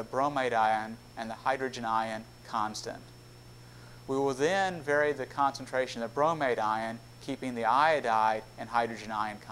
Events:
0.0s-9.5s: mechanisms
0.1s-0.9s: man speaking
1.1s-2.2s: man speaking
2.5s-2.9s: man speaking
3.6s-4.0s: breathing
4.0s-7.0s: man speaking
7.3s-8.3s: man speaking
8.6s-9.5s: man speaking

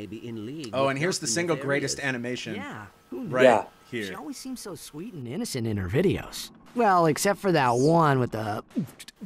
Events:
0.0s-2.9s: man speaking
0.0s-9.2s: conversation
0.0s-9.2s: mechanisms
0.6s-0.6s: tick
3.1s-3.7s: man speaking
3.8s-6.5s: man speaking
6.7s-8.6s: man speaking
7.6s-7.9s: sound effect
8.7s-8.9s: human voice
9.0s-9.1s: clicking
9.2s-9.2s: human voice

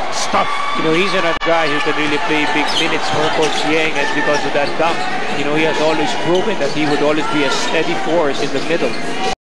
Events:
0.0s-9.3s: cheering
0.0s-9.3s: mechanisms
0.1s-0.4s: male speech
0.7s-4.9s: male speech
1.6s-1.9s: squeal
1.9s-2.2s: generic impact sounds
2.6s-3.7s: squeal
3.0s-3.3s: generic impact sounds
3.8s-3.9s: tick
4.3s-4.7s: squeal
5.1s-8.9s: male speech
5.5s-9.3s: squeal

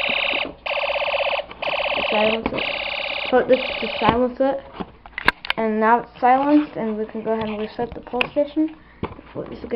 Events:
0.0s-9.7s: mechanisms
3.5s-4.1s: alarm
8.0s-8.7s: surface contact
8.2s-8.3s: tap
9.3s-9.7s: kid speaking

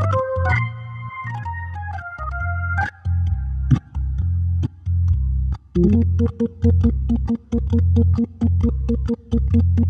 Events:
0.0s-9.8s: music

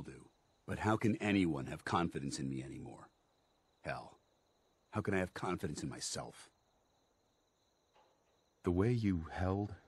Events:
0.0s-0.3s: man speaking
0.0s-9.8s: background noise
0.0s-9.8s: conversation
0.0s-9.8s: cricket
0.0s-9.8s: video game sound
0.7s-3.1s: man speaking
3.8s-4.1s: man speaking
4.9s-6.5s: man speaking
7.9s-8.3s: generic impact sounds
8.6s-9.8s: man speaking

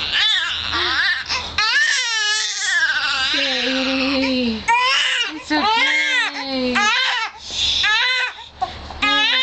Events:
0.0s-1.2s: infant cry
0.0s-9.4s: mechanisms
0.7s-1.0s: woman speaking
1.2s-1.5s: gasp
1.5s-4.3s: infant cry
1.7s-2.0s: woman speaking
3.3s-4.6s: woman speaking
4.2s-4.3s: gasp
4.6s-5.3s: infant cry
5.2s-6.9s: woman speaking
5.3s-5.5s: gasp
5.5s-6.3s: infant cry
6.3s-6.4s: gasp
6.7s-7.3s: infant cry
7.3s-7.4s: gasp
7.4s-8.5s: human sounds
7.8s-8.4s: infant cry
8.3s-8.5s: gasp
8.6s-8.7s: human sounds
8.9s-9.4s: woman speaking
9.0s-9.4s: infant cry

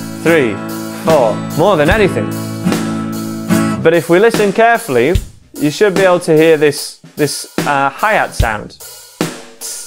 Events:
0.0s-9.8s: music
0.2s-0.6s: man speaking
1.0s-1.3s: man speaking
1.5s-2.2s: man speaking
3.8s-5.2s: man speaking
5.5s-6.9s: man speaking
7.1s-8.7s: man speaking

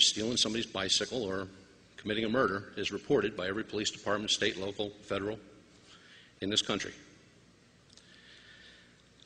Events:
0.0s-1.4s: man speaking
0.0s-9.2s: mechanisms
1.9s-2.6s: man speaking
2.7s-4.9s: man speaking
5.0s-5.3s: man speaking
5.7s-6.3s: breathing
6.4s-7.0s: man speaking
7.9s-8.0s: clicking
8.0s-8.9s: breathing
8.1s-8.2s: clicking
8.9s-9.0s: clicking
9.2s-9.2s: clicking

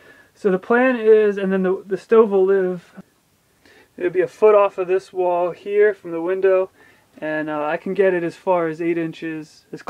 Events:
0.0s-9.8s: background noise
0.4s-2.8s: male speech
3.9s-6.7s: male speech
7.2s-9.5s: male speech
9.7s-9.8s: male speech

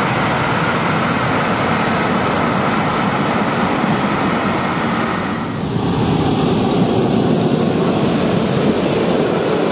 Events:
0.0s-9.7s: train
5.2s-5.5s: train wheels squealing

